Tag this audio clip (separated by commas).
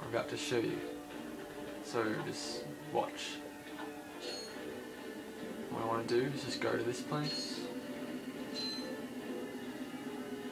Speech